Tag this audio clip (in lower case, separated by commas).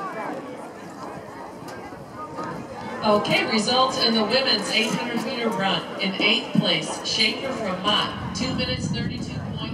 speech, run, outside, urban or man-made